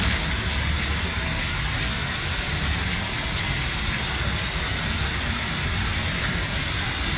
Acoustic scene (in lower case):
park